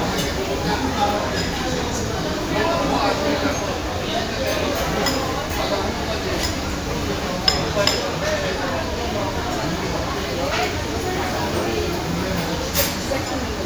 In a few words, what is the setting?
crowded indoor space